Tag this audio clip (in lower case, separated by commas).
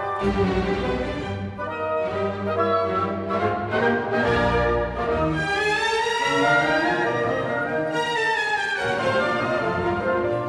music